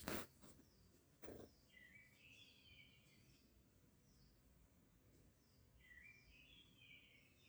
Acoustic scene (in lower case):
park